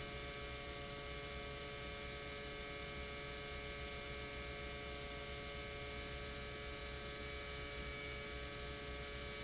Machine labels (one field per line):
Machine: pump